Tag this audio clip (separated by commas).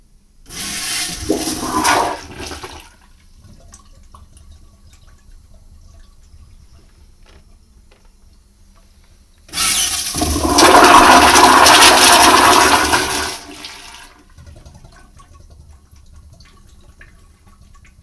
home sounds, Toilet flush